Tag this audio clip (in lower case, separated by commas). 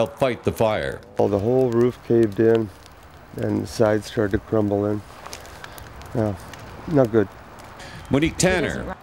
fire